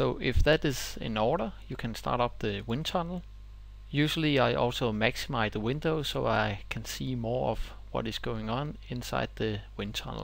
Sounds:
speech

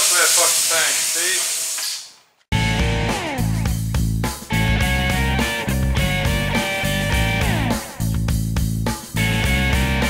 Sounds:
speech
music

